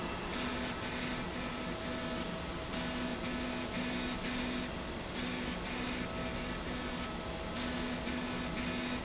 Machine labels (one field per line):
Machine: slide rail